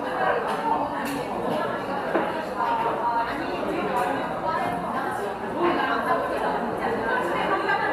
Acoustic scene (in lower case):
cafe